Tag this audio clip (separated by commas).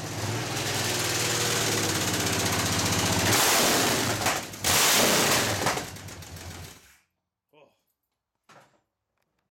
Medium engine (mid frequency), Accelerating, Engine